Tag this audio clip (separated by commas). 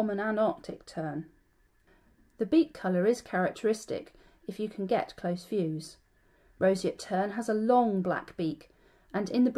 Speech